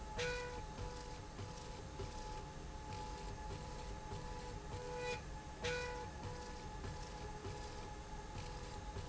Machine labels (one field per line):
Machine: slide rail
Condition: normal